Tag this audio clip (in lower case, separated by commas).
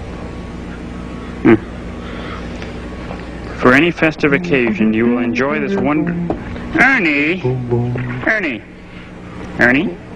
speech, music